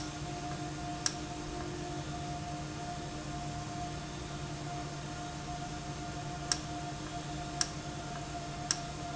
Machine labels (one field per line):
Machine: valve